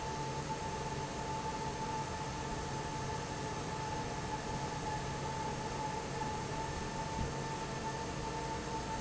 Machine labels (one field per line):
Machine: fan